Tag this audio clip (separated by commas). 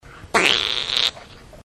Fart